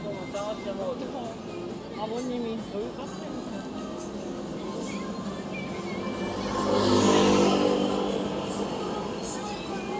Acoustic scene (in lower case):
street